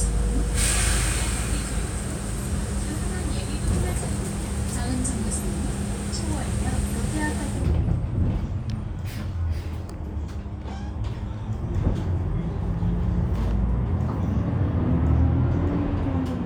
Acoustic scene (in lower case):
bus